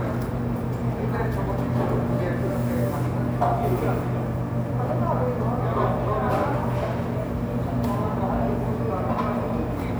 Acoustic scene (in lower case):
cafe